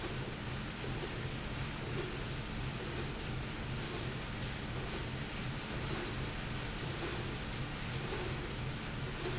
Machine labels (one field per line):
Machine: slide rail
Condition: normal